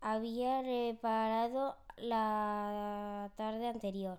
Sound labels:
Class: speech